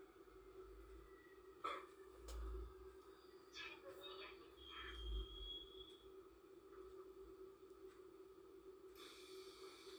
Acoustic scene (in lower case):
subway train